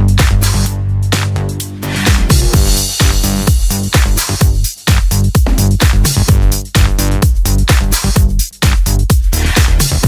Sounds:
House music

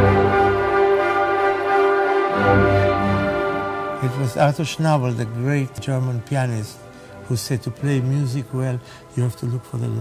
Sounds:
Orchestra, Music, Speech

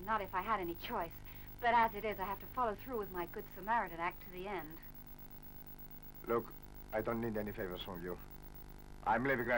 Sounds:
Speech

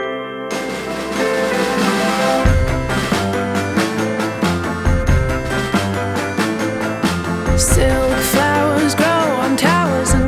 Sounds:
Music, Exciting music

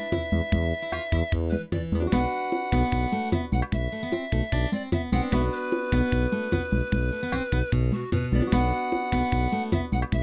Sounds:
Music, Video game music

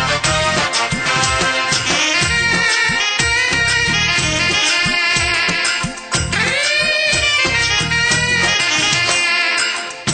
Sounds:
Music of Bollywood

